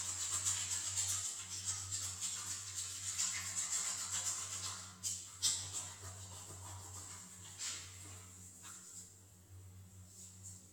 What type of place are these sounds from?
restroom